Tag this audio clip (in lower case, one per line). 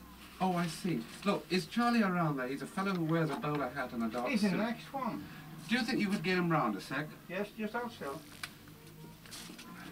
speech